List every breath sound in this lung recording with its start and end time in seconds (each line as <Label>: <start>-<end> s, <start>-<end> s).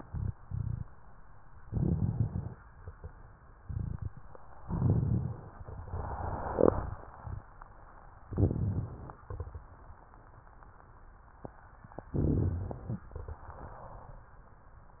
Inhalation: 1.68-2.58 s, 4.60-5.52 s, 8.28-9.23 s, 12.14-13.09 s
Exhalation: 9.30-10.01 s
Rhonchi: 1.68-2.58 s, 4.60-5.52 s, 8.28-9.23 s, 12.14-13.09 s